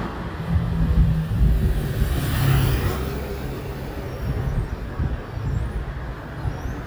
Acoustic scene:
street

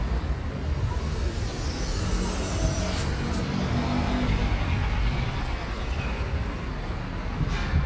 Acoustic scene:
street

